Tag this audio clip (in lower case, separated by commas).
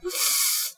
breathing, respiratory sounds